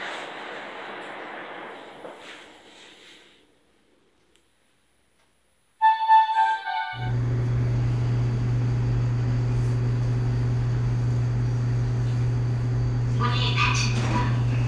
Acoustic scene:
elevator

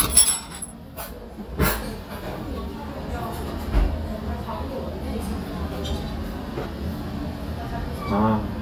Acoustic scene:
restaurant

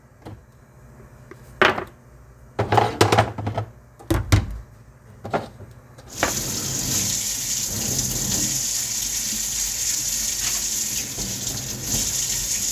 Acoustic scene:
kitchen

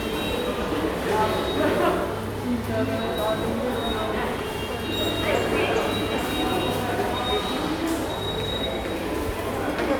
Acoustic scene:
subway station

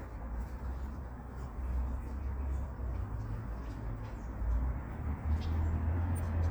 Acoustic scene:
residential area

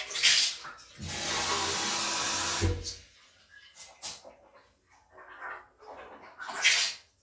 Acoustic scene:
restroom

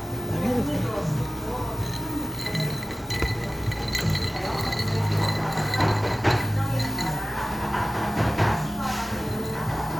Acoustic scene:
cafe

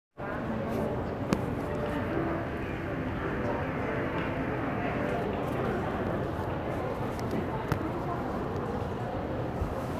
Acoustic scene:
crowded indoor space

